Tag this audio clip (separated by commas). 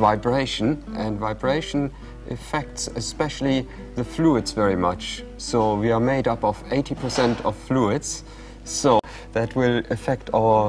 Speech, Music